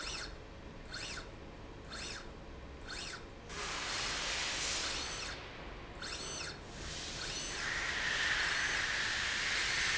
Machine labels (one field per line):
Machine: slide rail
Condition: normal